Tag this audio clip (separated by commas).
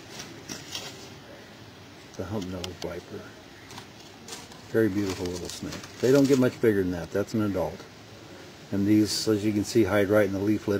Speech